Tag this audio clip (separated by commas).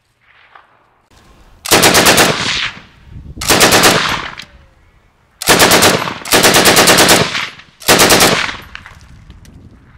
machine gun shooting